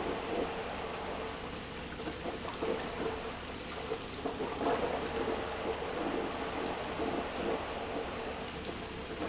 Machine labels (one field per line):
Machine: pump